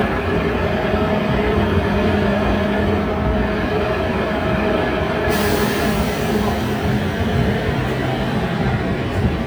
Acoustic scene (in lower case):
street